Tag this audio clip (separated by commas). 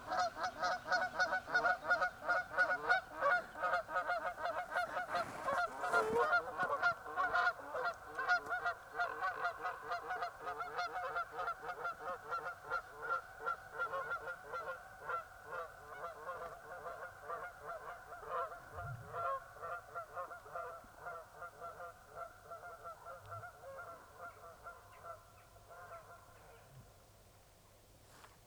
bird call, Wild animals, Fowl, Animal, Bird, livestock